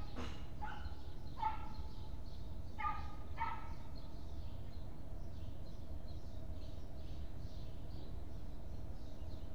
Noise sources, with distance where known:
dog barking or whining

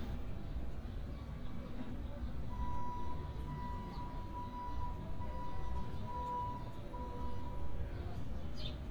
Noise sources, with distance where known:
reverse beeper, far

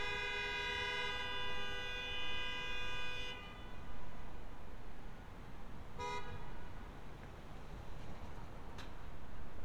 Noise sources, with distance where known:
background noise

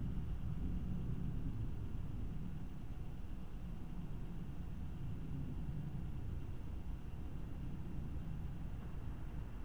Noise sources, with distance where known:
background noise

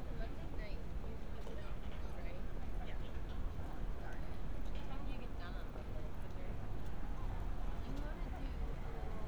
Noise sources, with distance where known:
person or small group talking

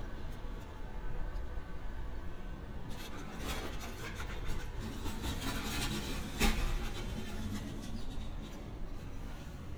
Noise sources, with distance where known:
unidentified impact machinery

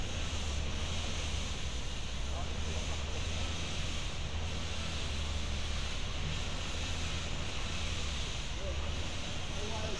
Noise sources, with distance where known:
person or small group talking, near

